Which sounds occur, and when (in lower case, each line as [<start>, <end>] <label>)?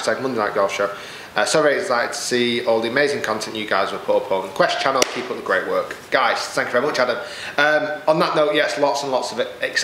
[0.00, 0.96] man speaking
[0.00, 9.83] mechanisms
[0.93, 1.25] breathing
[1.35, 5.93] man speaking
[4.91, 5.11] generic impact sounds
[6.11, 7.21] man speaking
[7.19, 7.56] breathing
[7.57, 9.83] man speaking